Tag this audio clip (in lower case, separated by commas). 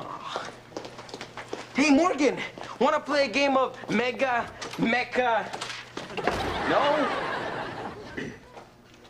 speech